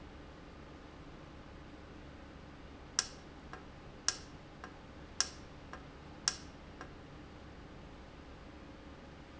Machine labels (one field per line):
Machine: valve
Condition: normal